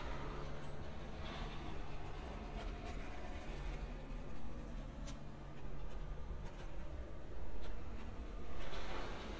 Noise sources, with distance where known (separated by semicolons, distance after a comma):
background noise